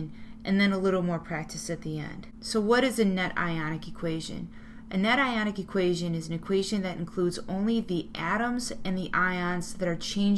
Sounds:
Speech, Narration

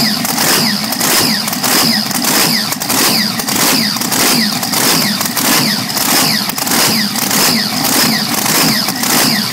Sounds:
Engine, Idling, Medium engine (mid frequency)

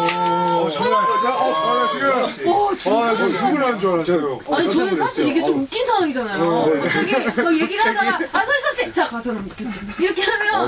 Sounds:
Radio, Speech

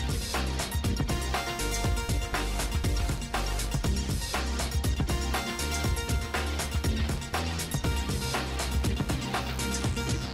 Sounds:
Music

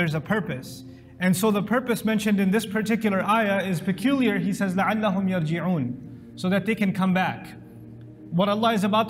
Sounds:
inside a large room or hall, Music, Speech

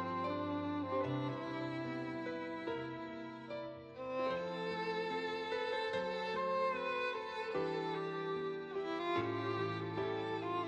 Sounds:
Music

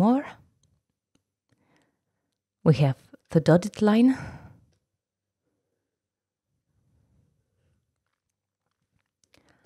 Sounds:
Speech

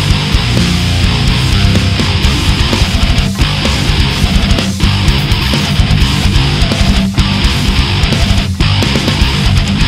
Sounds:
Music

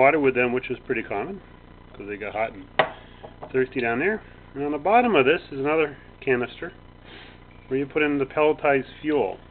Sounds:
Speech

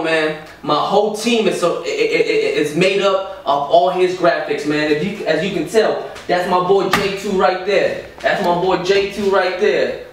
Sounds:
Speech

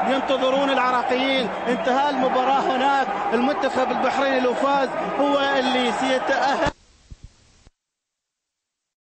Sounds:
Music, Speech

